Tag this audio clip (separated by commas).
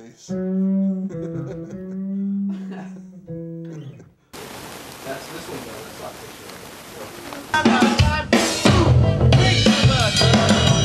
Punk rock, Speech, Music